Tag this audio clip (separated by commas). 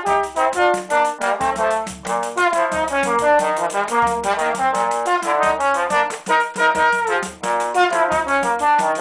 playing trombone, Trombone, Music